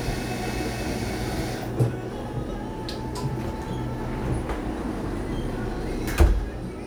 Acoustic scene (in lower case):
cafe